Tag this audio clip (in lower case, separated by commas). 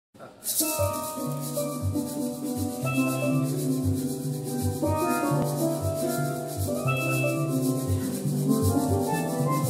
percussion, musical instrument, music, steelpan